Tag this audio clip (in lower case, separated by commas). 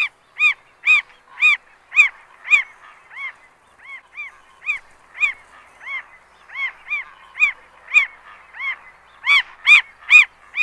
bird, chirp, bird chirping, bird song